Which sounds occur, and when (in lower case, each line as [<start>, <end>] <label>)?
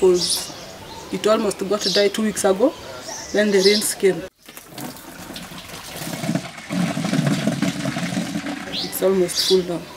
[0.00, 0.42] female speech
[0.00, 9.95] wind
[0.32, 0.64] bird call
[1.04, 2.75] female speech
[1.69, 2.06] bird call
[3.02, 3.38] bird call
[3.30, 4.25] female speech
[3.57, 3.92] bird call
[4.27, 9.95] pump (liquid)
[8.71, 8.92] bird call
[8.71, 9.82] female speech
[9.29, 9.61] bird call